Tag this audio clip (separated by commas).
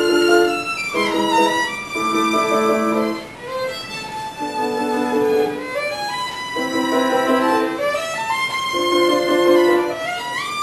Musical instrument, fiddle, Piano, Music, Classical music, Bowed string instrument